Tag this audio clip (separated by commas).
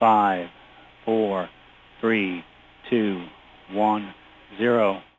Human voice, man speaking, Speech